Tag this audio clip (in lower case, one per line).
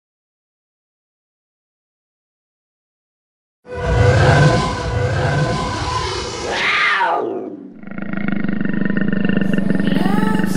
music